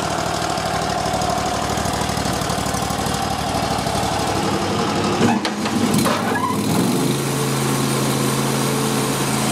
A loud lawnmower engine idling and then being put into gear